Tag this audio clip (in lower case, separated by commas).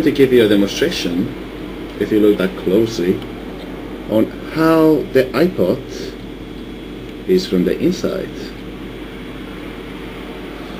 speech